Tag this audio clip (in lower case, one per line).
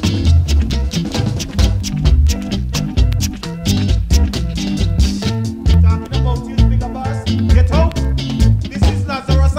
reggae
music